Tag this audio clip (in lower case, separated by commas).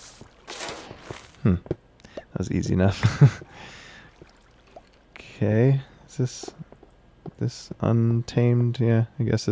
walk, speech